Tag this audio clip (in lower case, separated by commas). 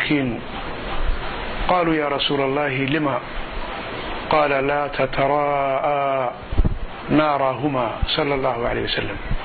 speech